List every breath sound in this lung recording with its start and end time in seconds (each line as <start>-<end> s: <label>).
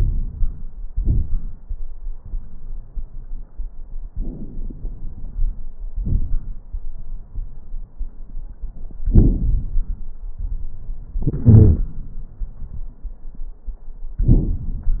4.09-5.59 s: inhalation
4.09-5.59 s: crackles
5.97-6.70 s: exhalation
5.97-6.70 s: crackles
9.06-10.04 s: inhalation
9.06-10.04 s: crackles
11.23-11.92 s: exhalation
11.23-11.92 s: crackles
14.16-15.00 s: inhalation
14.16-15.00 s: crackles